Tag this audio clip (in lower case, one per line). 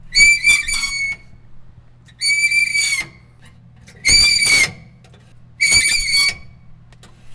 screech